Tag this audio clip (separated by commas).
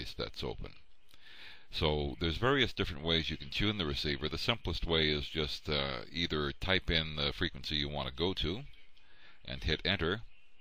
Speech